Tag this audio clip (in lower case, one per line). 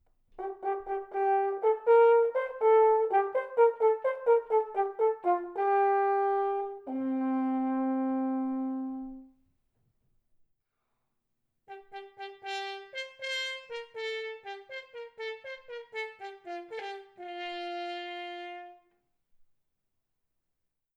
brass instrument
musical instrument
music